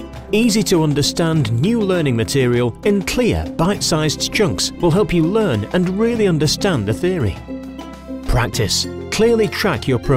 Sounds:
Music, Speech

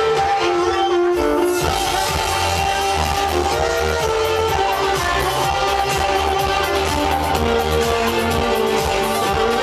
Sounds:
Musical instrument, Music, Violin

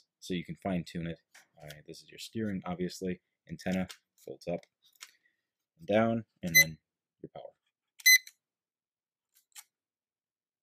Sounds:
Speech, inside a small room

